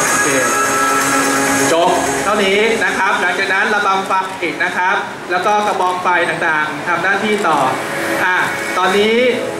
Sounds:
speech

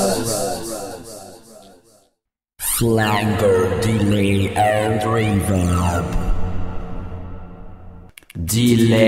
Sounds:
speech, inside a large room or hall

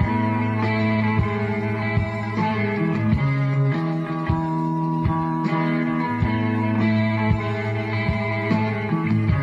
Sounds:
music

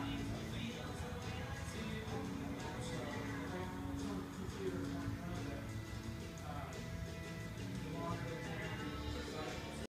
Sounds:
music

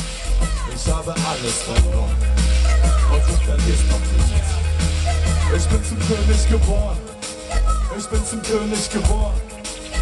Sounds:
music, speech

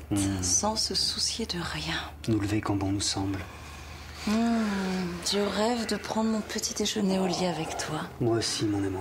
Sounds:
speech

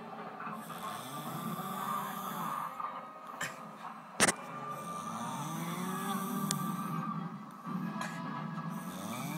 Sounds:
music, snoring

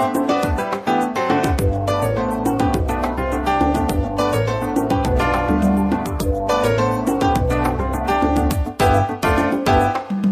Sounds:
music

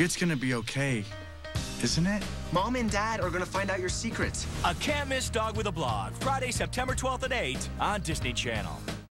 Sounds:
music, speech

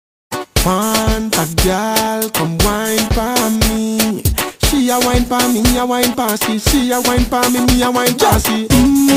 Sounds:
reggae, afrobeat, music

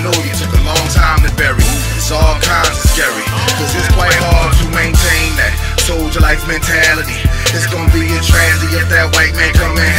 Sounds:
electronica, music

